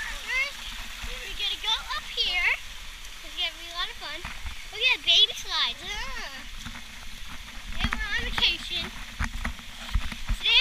Child talking with water sounds